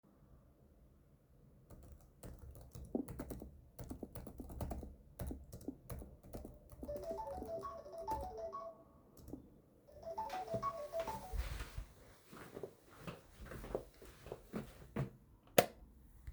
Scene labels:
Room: bedroom; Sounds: keyboard typing, phone ringing, footsteps, light switch

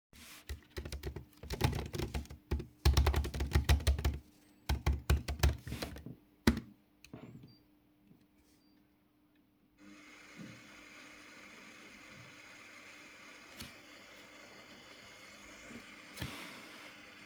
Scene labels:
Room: office, kitchen; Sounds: keyboard typing, coffee machine

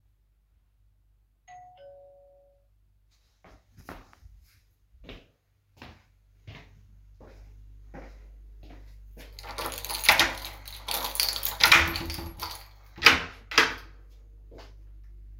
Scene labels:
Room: living room; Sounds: bell ringing, footsteps, keys, door

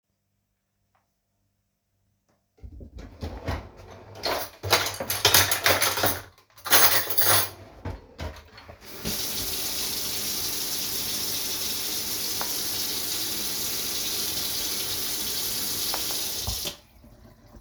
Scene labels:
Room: kitchen; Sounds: wardrobe or drawer (more than once), cutlery and dishes, running water

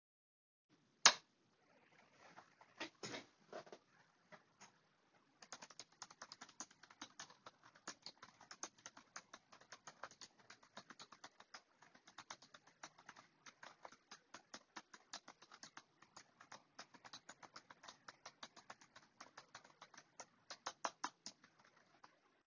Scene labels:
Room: office; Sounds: light switch, keyboard typing

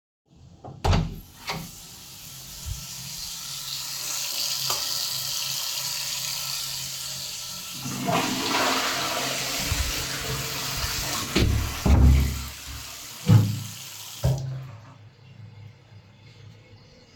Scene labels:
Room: lavatory; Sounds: door (more than once), running water, light switch, toilet flushing

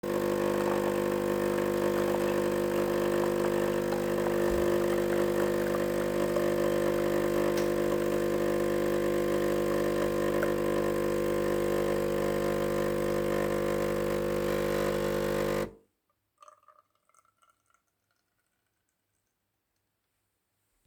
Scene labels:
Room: kitchen; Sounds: coffee machine

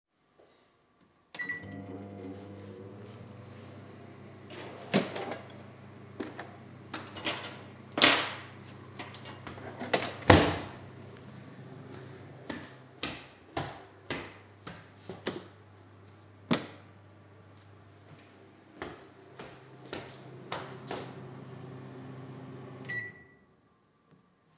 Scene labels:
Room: kitchen; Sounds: microwave, wardrobe or drawer (more than once), cutlery and dishes, footsteps, light switch

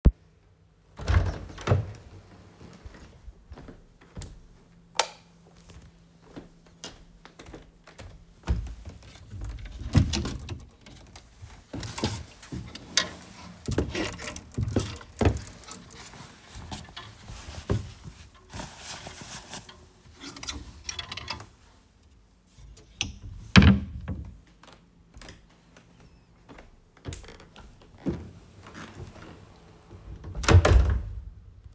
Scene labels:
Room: bedroom; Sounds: door (more than once), light switch, footsteps, wardrobe or drawer (more than once)

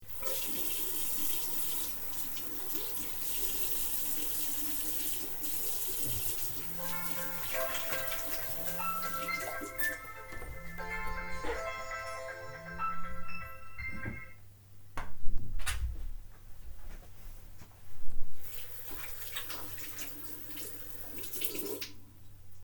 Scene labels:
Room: bathroom; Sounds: running water, phone ringing

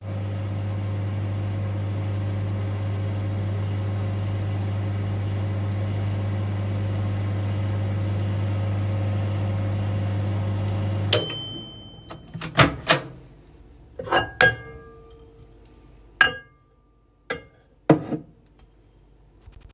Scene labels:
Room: kitchen; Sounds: microwave, cutlery and dishes

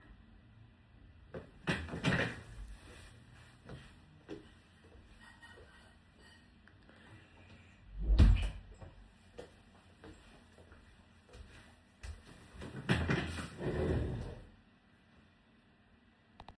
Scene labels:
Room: bedroom; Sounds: footsteps, cutlery and dishes, door

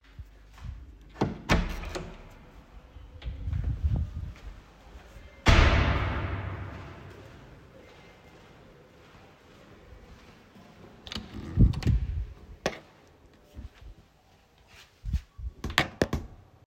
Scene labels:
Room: kitchen, hallway, bedroom; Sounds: door (more than once), footsteps, wardrobe or drawer

